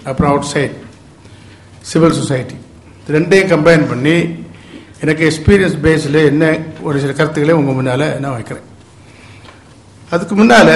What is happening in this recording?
A man is giving a speech